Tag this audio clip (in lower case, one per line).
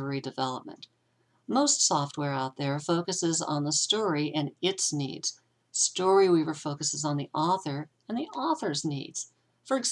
speech